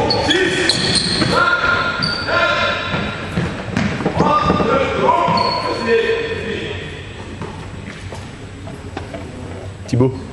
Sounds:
basketball bounce

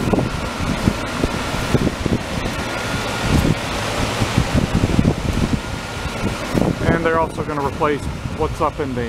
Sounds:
Ocean, Wind

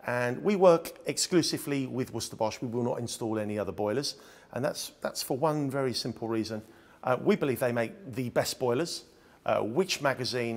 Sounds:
Speech

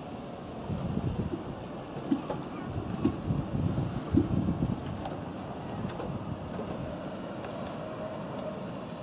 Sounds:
Rowboat

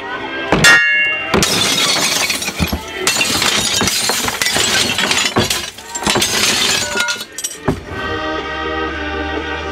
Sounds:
Glass, Music

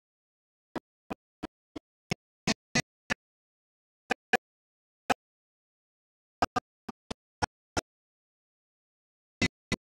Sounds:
Music, Soul music

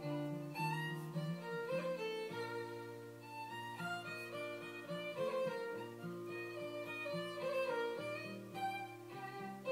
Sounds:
Music, Writing

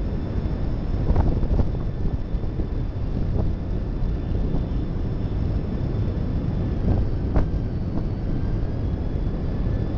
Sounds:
Train, Rail transport, Vehicle, outside, urban or man-made

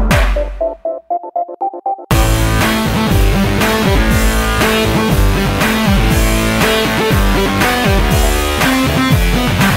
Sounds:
Music, Soundtrack music

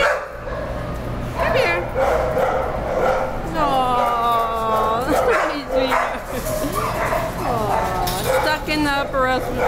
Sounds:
Yip, Bow-wow, Whimper (dog), Speech

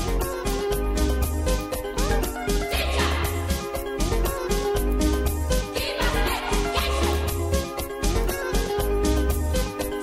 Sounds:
Music

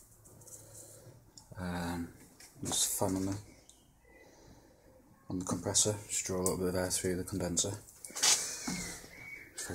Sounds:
Speech

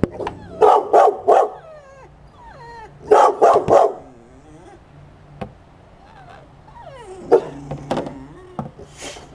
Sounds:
Animal, Dog, pets

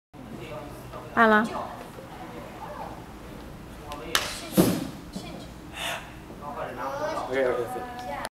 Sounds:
Speech

